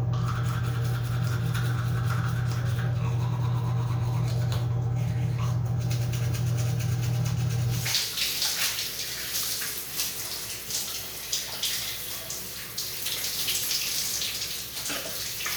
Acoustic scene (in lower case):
restroom